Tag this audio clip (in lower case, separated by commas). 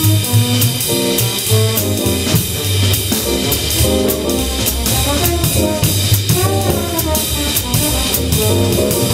jazz, musical instrument, music, drum kit, drum